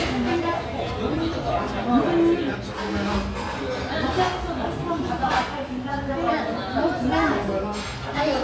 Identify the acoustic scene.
restaurant